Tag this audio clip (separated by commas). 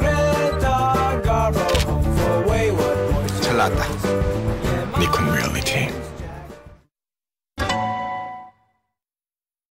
Speech, Music